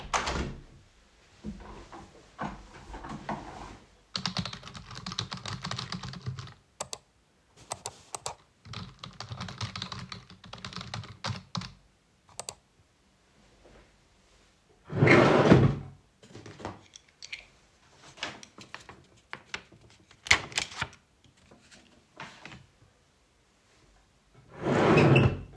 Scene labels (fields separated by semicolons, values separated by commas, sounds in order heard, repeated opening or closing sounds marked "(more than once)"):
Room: office; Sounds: window, keyboard typing, wardrobe or drawer (more than once)